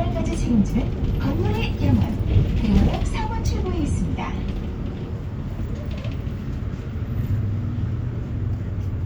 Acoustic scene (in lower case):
bus